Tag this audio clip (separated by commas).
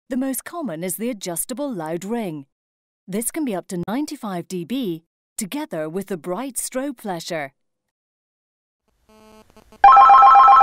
Speech